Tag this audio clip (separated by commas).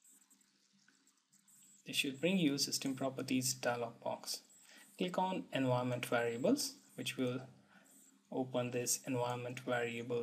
inside a small room, Speech